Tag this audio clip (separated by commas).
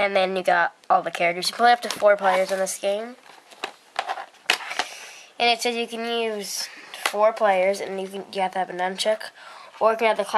Speech